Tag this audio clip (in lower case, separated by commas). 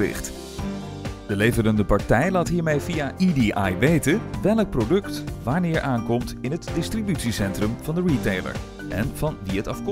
speech, music